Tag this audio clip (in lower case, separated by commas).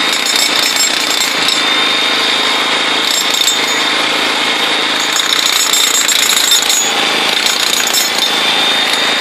jackhammer